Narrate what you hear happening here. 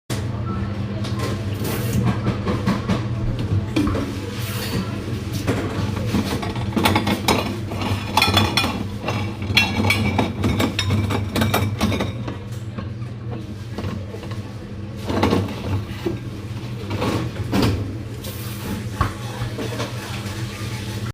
Water running in sink while dishes are moved.